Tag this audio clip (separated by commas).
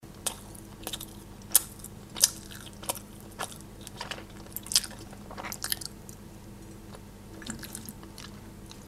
Chewing